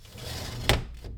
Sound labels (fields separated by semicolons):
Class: window; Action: closing; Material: glass